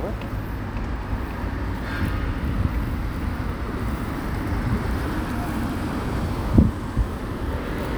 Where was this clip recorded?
on a street